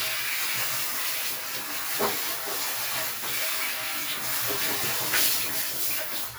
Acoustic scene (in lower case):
restroom